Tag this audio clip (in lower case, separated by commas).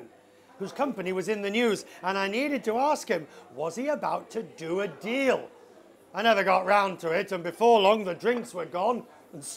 speech